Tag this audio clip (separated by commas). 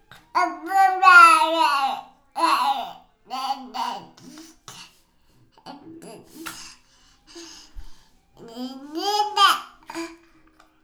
Speech, Human voice